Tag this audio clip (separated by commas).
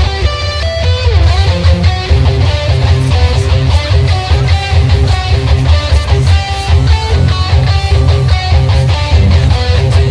Electric guitar, Guitar, Music, Musical instrument, Strum, Plucked string instrument